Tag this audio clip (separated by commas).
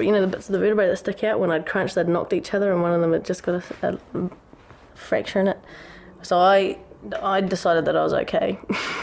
Speech